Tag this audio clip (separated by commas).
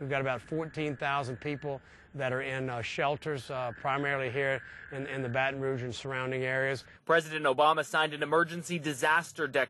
Speech